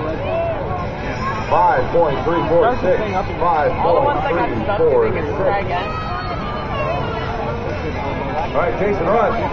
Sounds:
Speech, Vehicle

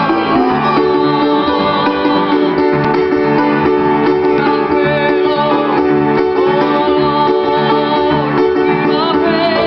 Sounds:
Music, Male singing

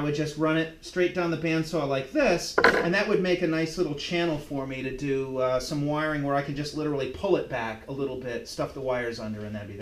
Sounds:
Wood

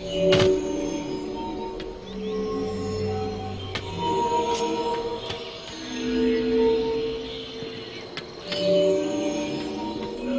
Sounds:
Music, inside a large room or hall

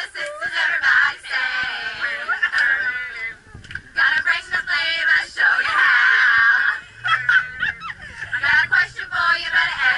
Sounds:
Female singing

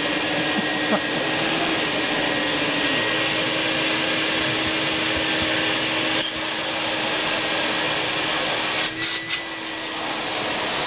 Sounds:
Vacuum cleaner

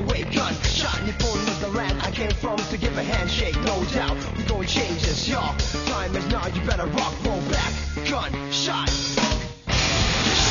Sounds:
Music

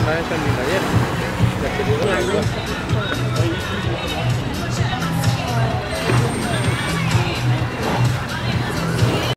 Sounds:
Speech, Music

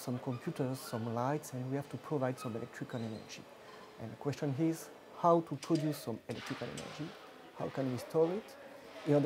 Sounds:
Speech

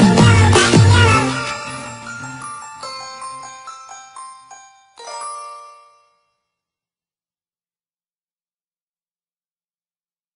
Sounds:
Music

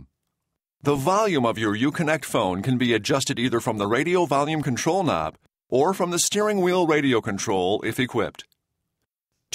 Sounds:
Speech

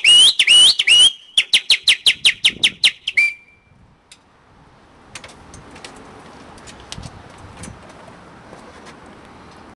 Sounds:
tweet, Bird

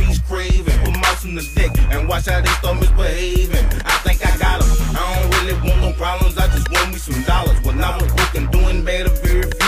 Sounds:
Music

